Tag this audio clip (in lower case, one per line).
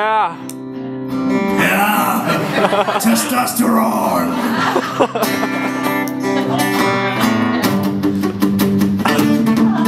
music